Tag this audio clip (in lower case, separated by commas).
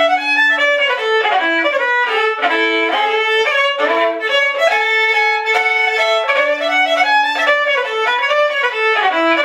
musical instrument, music, violin